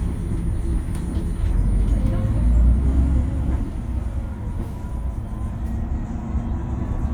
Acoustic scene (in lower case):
bus